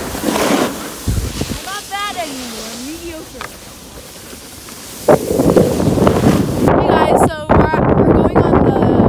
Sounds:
skiing

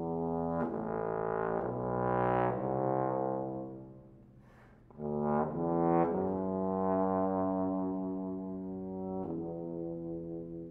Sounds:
playing trombone

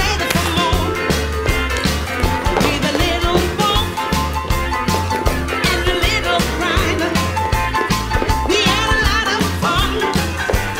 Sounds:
footsteps, Music

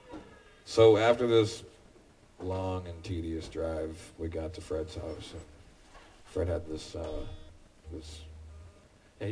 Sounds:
Speech

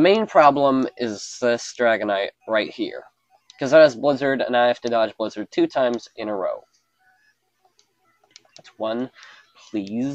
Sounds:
Speech

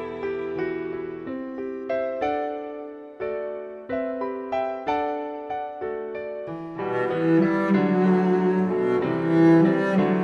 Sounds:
Music

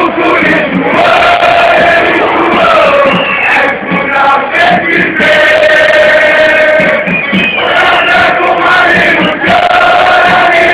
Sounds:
Music

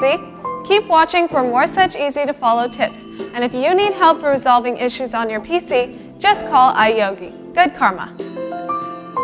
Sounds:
Music, Wind chime, Speech

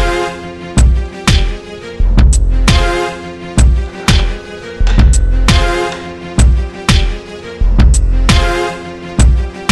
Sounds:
Music

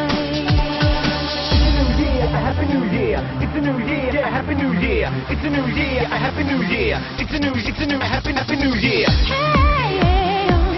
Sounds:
Music, Techno, Electronic music

